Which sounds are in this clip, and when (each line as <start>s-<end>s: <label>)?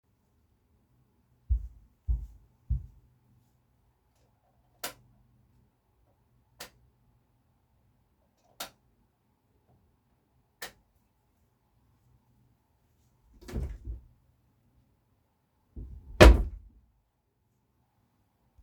1.3s-3.0s: footsteps
4.7s-5.1s: light switch
6.5s-6.8s: light switch
8.5s-8.7s: light switch
10.6s-10.7s: light switch
13.5s-14.2s: wardrobe or drawer
15.8s-16.7s: wardrobe or drawer